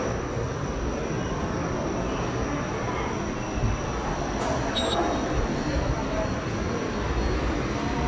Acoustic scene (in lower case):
subway station